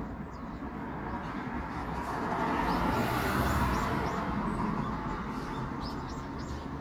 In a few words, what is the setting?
residential area